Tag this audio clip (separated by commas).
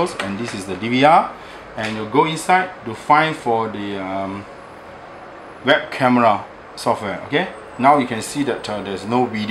Speech